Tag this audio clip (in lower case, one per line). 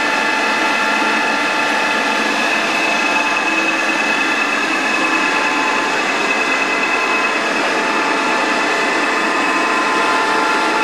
lathe spinning